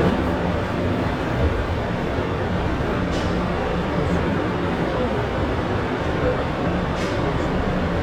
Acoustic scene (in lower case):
subway train